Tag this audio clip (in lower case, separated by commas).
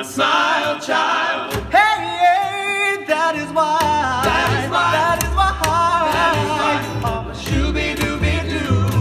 music, singing, inside a large room or hall